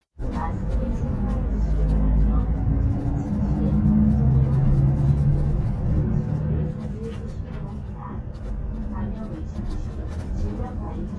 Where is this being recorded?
on a bus